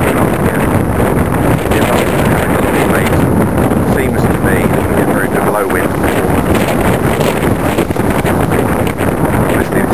Strong wind is blowing, rustling is present, and an adult male is speaking